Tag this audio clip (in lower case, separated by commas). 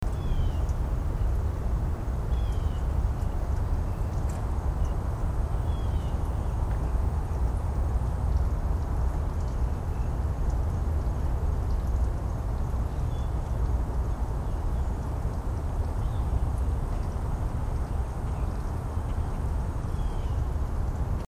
wild animals, bird, animal, bird call